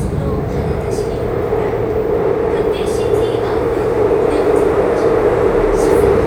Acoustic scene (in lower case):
subway train